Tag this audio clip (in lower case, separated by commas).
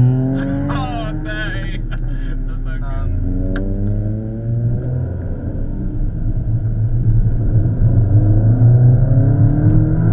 car passing by